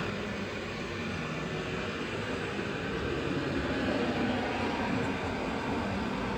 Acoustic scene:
street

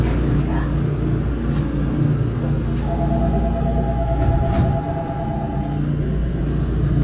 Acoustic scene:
subway train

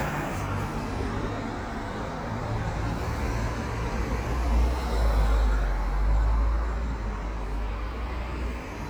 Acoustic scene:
street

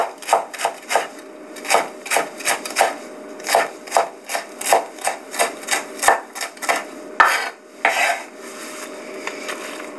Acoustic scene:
kitchen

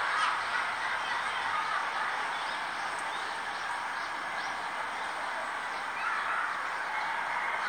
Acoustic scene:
residential area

